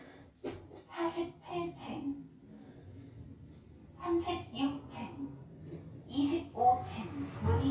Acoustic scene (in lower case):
elevator